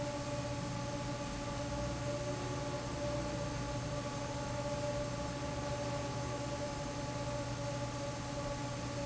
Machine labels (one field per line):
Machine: fan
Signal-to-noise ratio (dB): -6 dB